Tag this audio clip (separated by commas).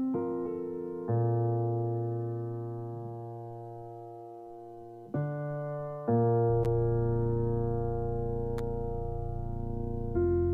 Music